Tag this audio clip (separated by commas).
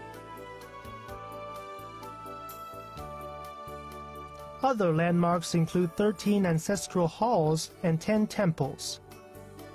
Music, Speech